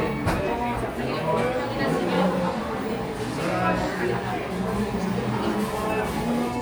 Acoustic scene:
crowded indoor space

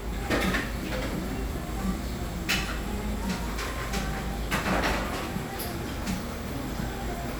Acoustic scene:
cafe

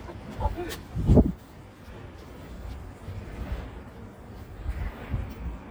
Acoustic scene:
residential area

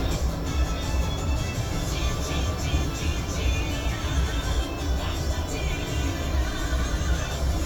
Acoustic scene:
bus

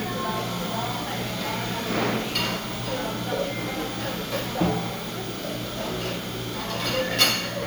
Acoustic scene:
cafe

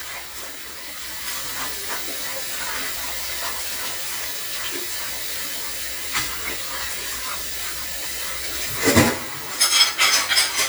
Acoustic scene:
kitchen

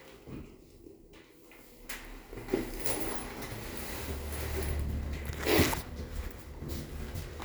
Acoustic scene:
elevator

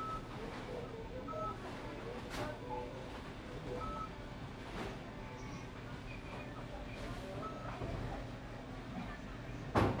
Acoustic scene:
crowded indoor space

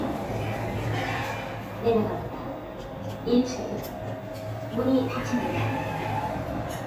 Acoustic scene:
elevator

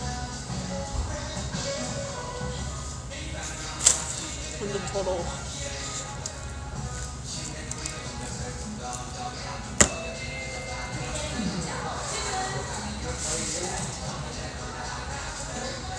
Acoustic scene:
restaurant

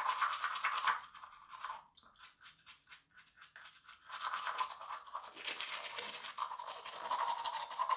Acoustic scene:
restroom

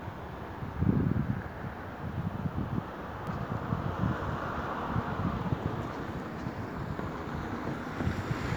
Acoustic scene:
street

